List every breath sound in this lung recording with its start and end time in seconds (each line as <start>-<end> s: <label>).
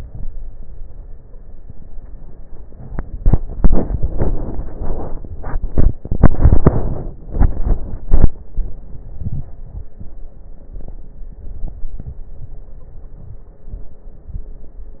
9.06-9.89 s: inhalation
9.06-9.89 s: crackles
12.65-13.23 s: stridor